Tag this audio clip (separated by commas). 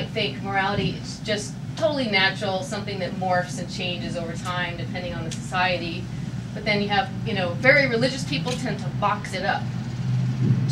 Speech